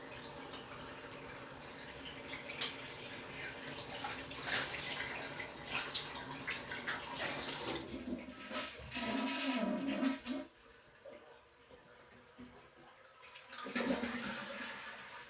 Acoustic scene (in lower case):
restroom